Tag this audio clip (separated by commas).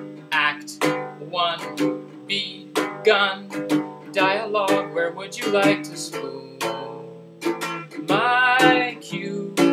Male singing, Music